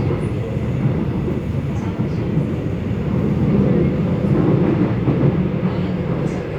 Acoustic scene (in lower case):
subway train